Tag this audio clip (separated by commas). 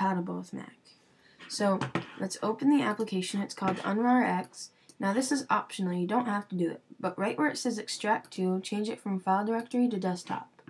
Speech